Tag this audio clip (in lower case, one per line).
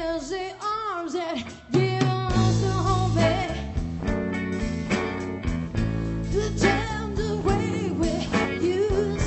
music
country